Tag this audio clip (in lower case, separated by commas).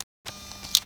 mechanisms, camera